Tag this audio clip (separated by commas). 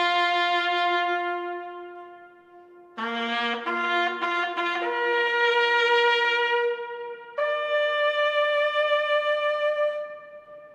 playing bugle